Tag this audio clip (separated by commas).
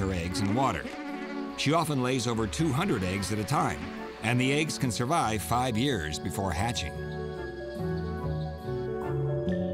Speech, Music